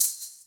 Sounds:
music, percussion, musical instrument, rattle (instrument)

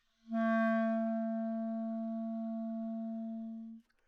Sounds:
musical instrument, music, wind instrument

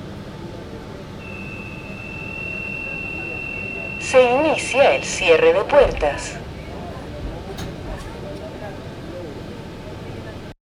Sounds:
rail transport, underground, vehicle

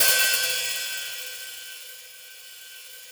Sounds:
percussion, music, musical instrument, hi-hat, cymbal

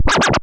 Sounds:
music, musical instrument, scratching (performance technique)

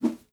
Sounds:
whoosh

